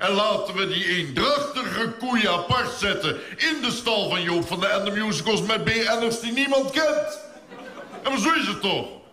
A man delivering a speech followed by some laughter from a crowd